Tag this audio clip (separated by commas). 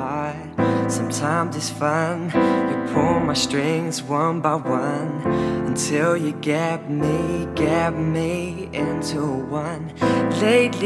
Music